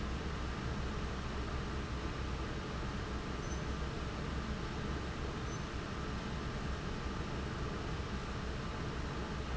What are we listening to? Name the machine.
fan